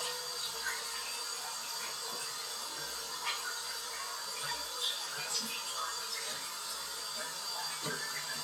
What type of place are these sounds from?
restroom